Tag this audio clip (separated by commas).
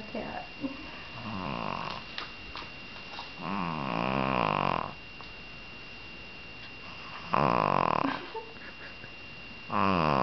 Speech